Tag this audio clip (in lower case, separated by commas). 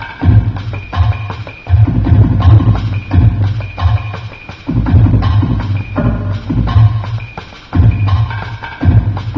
drum, bass drum, music, drum machine, musical instrument